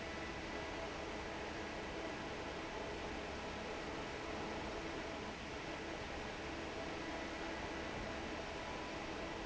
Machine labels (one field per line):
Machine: fan